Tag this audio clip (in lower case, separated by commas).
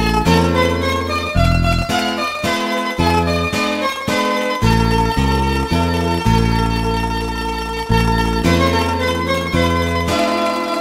folk music, music, zither